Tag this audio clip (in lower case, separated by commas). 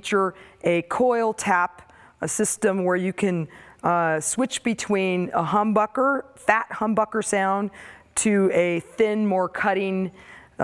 speech